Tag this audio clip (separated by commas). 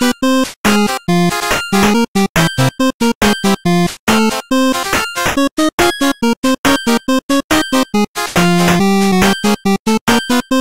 Music